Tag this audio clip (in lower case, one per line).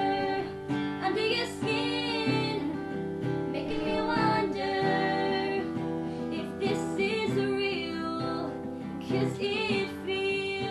female singing
music